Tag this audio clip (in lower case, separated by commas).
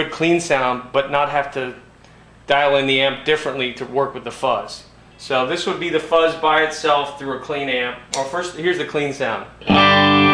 music, speech